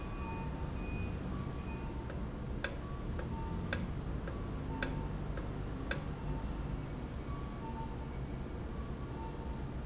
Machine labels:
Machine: valve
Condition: normal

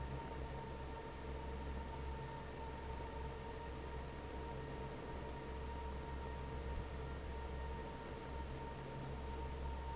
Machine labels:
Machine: fan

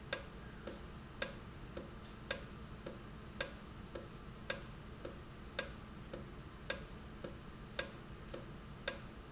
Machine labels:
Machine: valve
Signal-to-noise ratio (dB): 6 dB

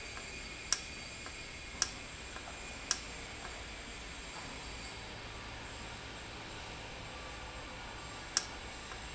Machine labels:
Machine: valve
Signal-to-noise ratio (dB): 0 dB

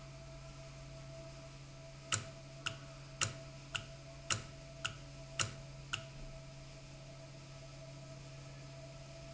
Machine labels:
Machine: valve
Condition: normal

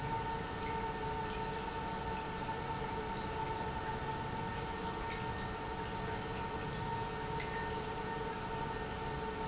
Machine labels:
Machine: pump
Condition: normal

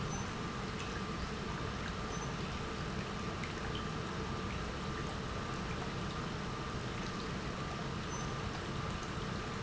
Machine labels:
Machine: pump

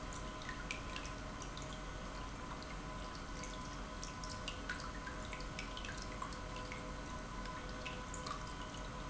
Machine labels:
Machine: pump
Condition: normal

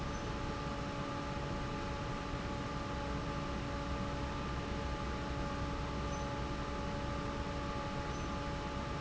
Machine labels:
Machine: fan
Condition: normal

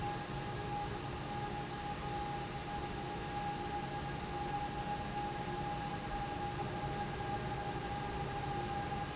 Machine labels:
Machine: fan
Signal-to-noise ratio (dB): -6 dB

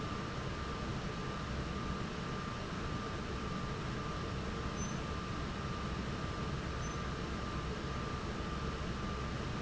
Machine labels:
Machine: fan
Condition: normal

